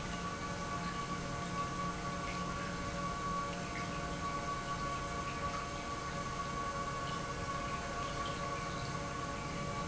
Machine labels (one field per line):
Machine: pump